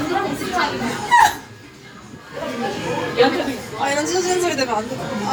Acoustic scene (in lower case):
restaurant